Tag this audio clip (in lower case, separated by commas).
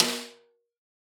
snare drum, music, drum, percussion, musical instrument